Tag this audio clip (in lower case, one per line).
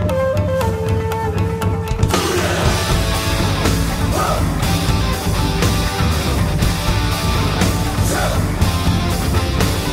music